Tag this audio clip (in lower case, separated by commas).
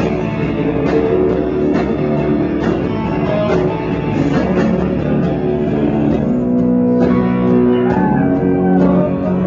music